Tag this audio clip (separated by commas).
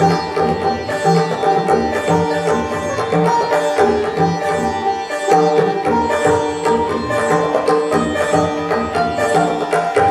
Classical music, Music